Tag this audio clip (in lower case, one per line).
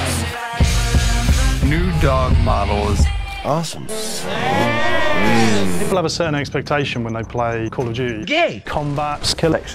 speech
music